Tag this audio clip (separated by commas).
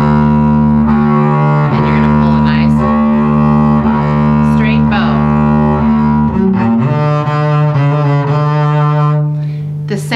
playing double bass